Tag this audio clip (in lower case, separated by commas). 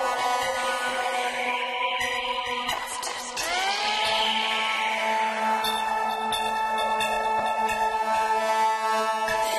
music